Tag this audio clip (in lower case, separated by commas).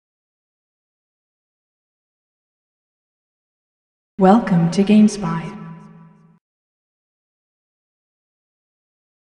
speech